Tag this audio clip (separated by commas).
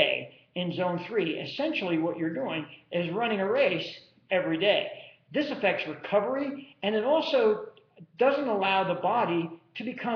Male speech, Speech